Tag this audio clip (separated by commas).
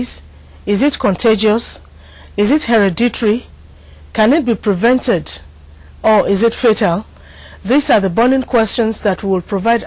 Speech